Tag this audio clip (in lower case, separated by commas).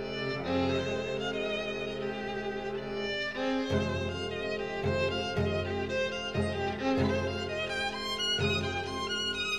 cello, music, violin